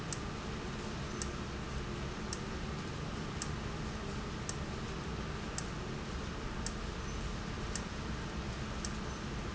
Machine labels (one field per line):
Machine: valve